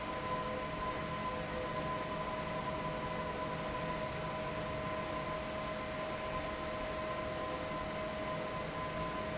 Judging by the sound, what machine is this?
fan